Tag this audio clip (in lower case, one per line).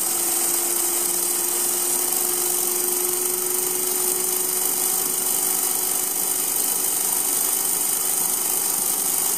tools